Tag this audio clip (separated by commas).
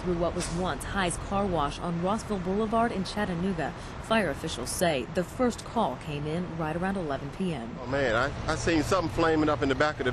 Speech